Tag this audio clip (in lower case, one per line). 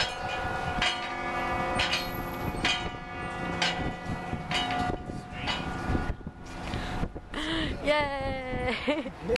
jingle bell